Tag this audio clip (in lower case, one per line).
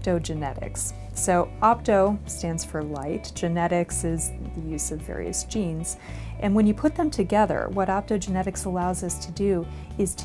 music
speech